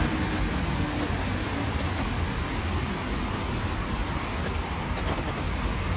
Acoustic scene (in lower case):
street